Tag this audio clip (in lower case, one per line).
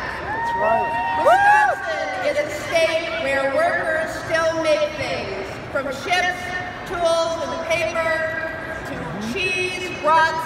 speech